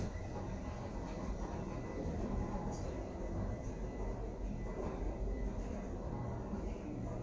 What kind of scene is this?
elevator